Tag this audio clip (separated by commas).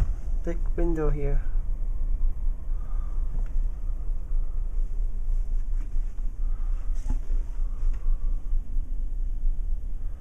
Speech